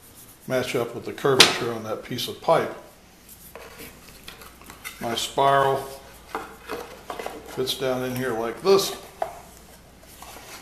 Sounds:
speech, inside a small room

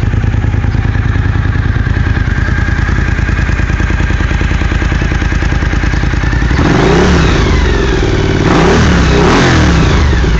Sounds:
motorcycle, outside, urban or man-made, vehicle

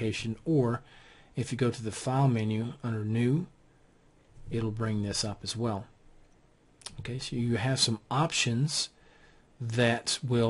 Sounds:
speech

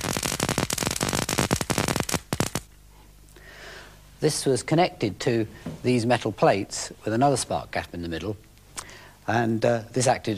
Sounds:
speech

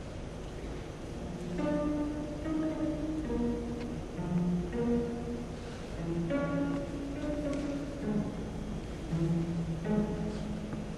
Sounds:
musical instrument, music, fiddle

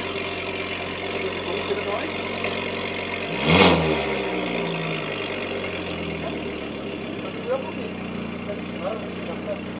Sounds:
sound effect, speech

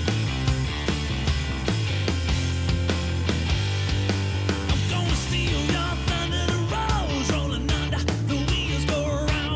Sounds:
music, funk, pop music

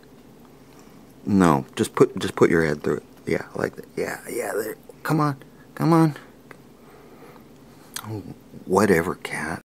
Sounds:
speech

